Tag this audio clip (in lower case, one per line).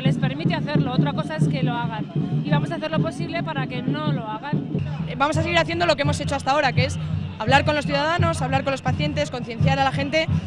people marching